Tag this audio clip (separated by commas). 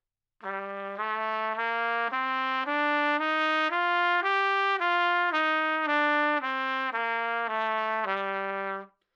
Music, Musical instrument, Trumpet, Brass instrument